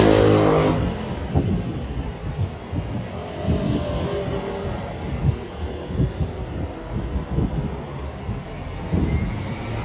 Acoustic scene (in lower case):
street